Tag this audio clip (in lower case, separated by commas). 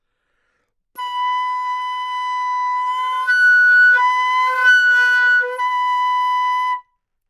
woodwind instrument, music, musical instrument